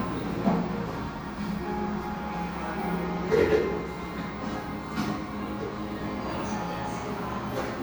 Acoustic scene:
cafe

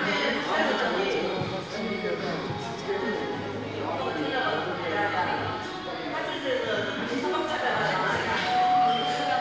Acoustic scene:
crowded indoor space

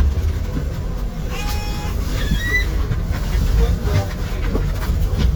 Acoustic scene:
bus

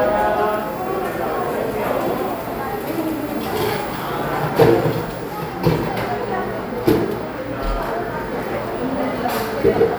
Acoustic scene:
cafe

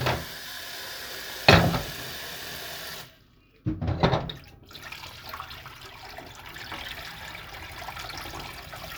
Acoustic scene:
kitchen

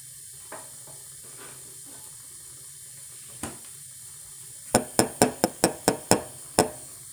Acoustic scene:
kitchen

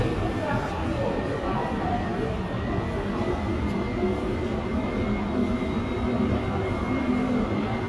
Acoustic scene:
subway station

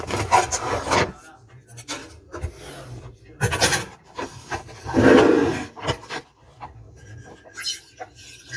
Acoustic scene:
kitchen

